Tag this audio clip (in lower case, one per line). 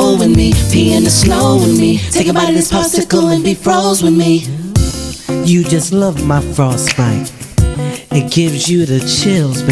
music
singing